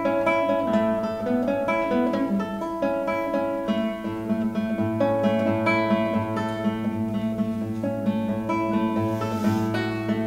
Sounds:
plucked string instrument
guitar
music
musical instrument

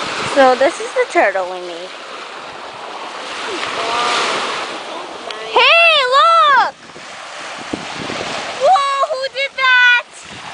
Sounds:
wind noise (microphone)
ocean
waves
wind

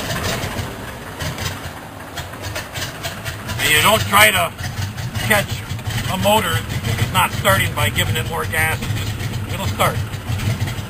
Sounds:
aircraft
speech
vehicle

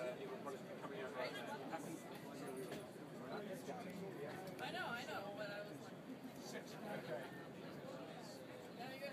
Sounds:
speech

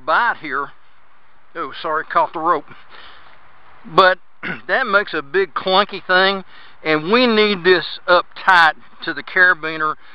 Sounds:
outside, rural or natural
speech

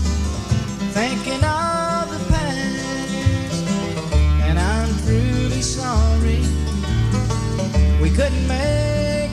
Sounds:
bluegrass
music

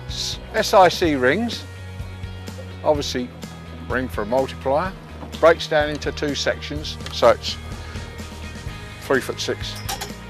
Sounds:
music
speech

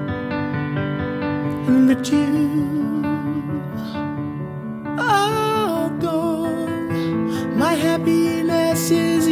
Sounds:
christian music
christmas music
music

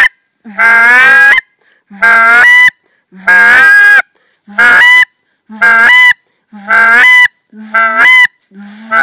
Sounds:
outside, rural or natural

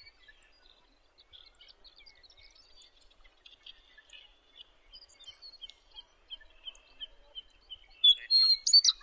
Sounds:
bird
outside, rural or natural

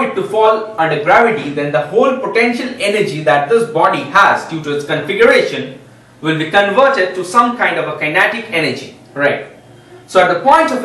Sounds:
speech

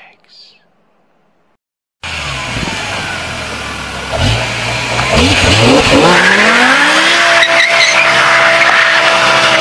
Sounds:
skidding

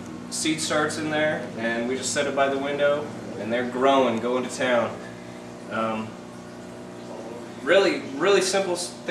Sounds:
speech

